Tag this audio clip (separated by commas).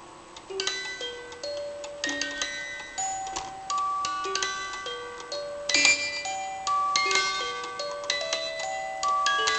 Soundtrack music, Music